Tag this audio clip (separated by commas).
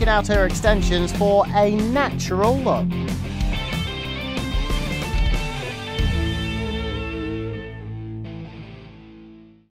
Music, Speech